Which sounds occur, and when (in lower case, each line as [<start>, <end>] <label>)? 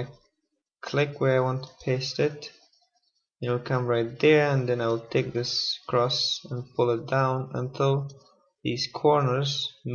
[0.00, 0.19] man speaking
[0.00, 0.33] clicking
[0.85, 1.71] man speaking
[1.23, 3.31] clicking
[1.89, 2.57] man speaking
[3.44, 8.10] man speaking
[3.47, 3.68] sound effect
[3.95, 7.09] sound effect
[8.12, 8.44] clicking
[8.67, 9.94] man speaking
[9.15, 9.88] sound effect